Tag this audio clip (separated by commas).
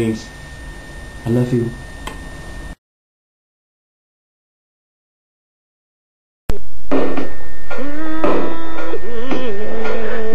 Speech